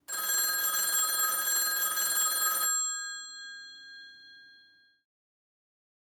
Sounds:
alarm, telephone

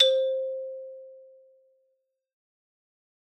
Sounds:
music, musical instrument, marimba, percussion, mallet percussion

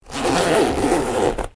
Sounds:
home sounds, zipper (clothing)

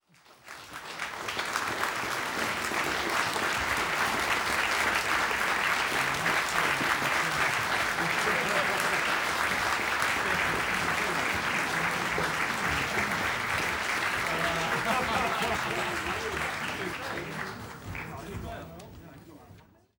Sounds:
laughter, door, human voice, knock, chatter, applause, human group actions, domestic sounds

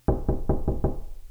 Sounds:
door, knock, domestic sounds

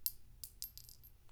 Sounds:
chink, glass

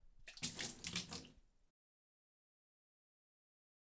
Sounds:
liquid, water, splatter

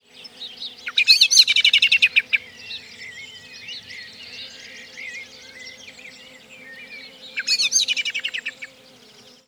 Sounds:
bird song, animal, wild animals, bird

